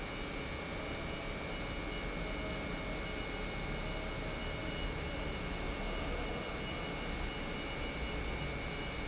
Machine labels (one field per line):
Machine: pump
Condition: normal